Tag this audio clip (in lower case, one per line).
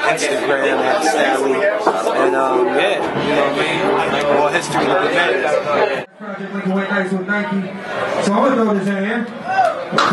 speech